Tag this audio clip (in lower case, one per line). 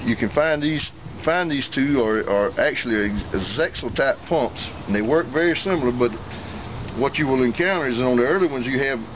speech